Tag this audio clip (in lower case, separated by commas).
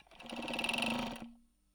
mechanisms